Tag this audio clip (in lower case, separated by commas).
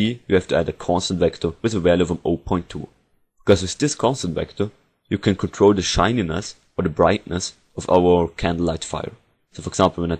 speech